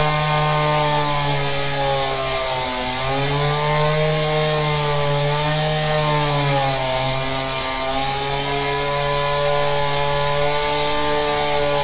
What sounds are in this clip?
unidentified powered saw